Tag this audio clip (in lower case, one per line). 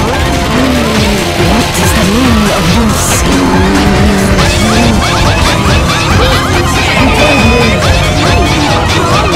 speech
music